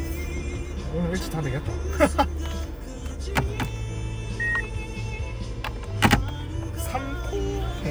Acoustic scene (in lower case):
car